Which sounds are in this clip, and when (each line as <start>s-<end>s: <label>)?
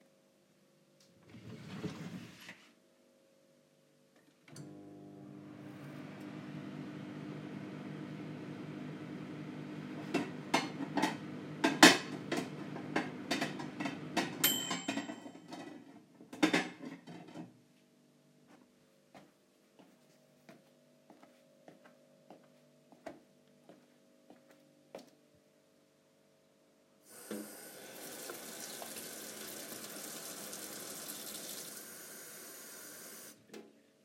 0.8s-3.1s: wardrobe or drawer
4.3s-16.1s: microwave
9.8s-17.5s: cutlery and dishes
18.3s-27.2s: footsteps
27.0s-33.8s: running water